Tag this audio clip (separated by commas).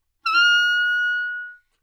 woodwind instrument, Musical instrument, Music